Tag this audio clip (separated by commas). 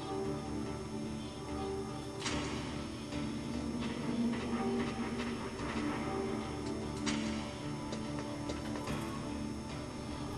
Run, Music